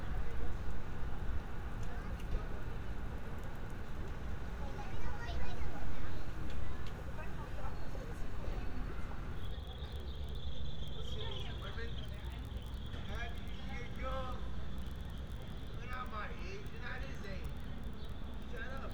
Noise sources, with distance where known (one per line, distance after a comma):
person or small group talking